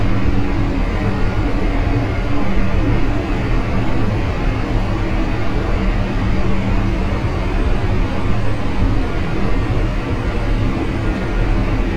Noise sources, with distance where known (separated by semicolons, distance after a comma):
large-sounding engine, near